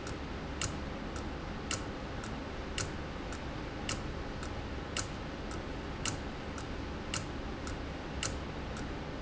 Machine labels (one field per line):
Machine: valve